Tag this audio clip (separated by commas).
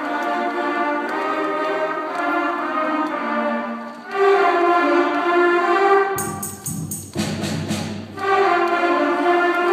Classical music, Orchestra, Music